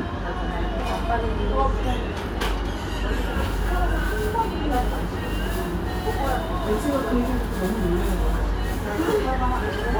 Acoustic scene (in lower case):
restaurant